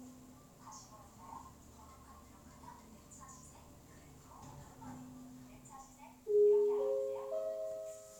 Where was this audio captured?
in an elevator